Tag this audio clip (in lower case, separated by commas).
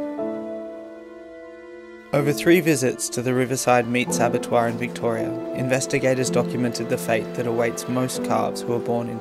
speech, music